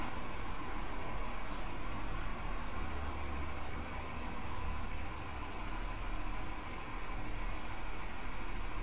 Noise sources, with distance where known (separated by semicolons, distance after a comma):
large-sounding engine, near